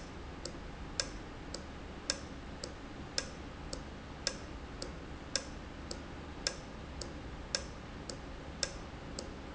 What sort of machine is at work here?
valve